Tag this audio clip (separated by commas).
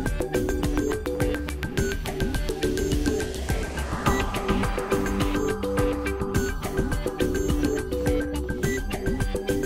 Music